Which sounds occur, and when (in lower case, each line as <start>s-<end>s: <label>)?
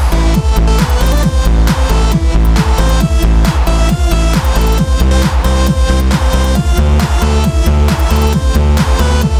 0.0s-9.3s: music